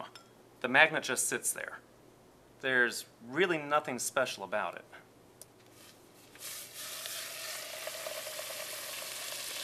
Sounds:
speech

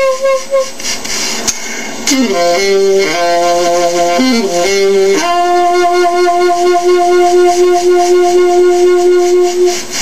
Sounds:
brass instrument, saxophone

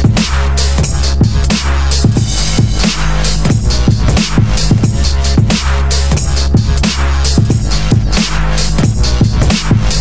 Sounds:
dubstep, music

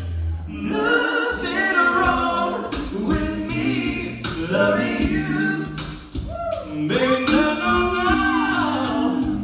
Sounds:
music, male singing, choir

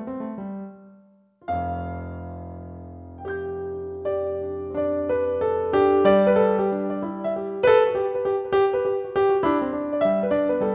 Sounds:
music, tender music

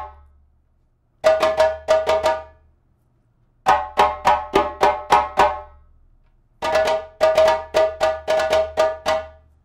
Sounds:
playing djembe

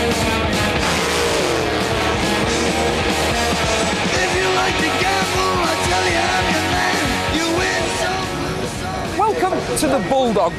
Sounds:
speech, music

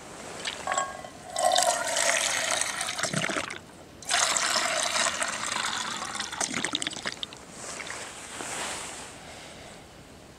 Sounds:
fill (with liquid), liquid

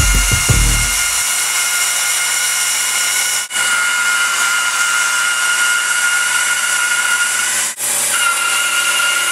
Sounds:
wood

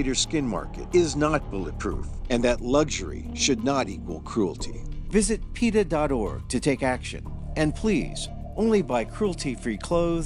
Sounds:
alligators

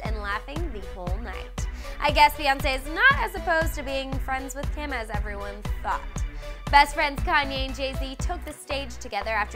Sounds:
speech, music

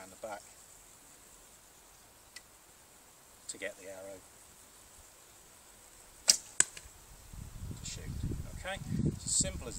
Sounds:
arrow, speech

